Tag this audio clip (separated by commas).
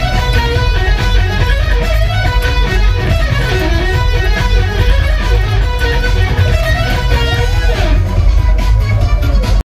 Plucked string instrument, Musical instrument, Music, Guitar, Electric guitar, playing electric guitar